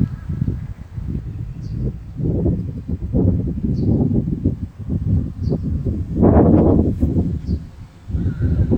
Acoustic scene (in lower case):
park